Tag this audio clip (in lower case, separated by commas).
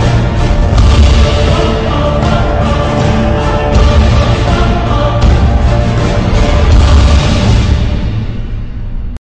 music